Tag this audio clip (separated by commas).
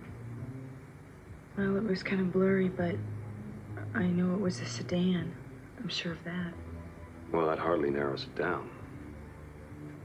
Speech